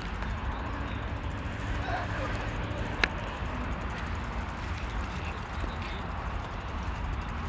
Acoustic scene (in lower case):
park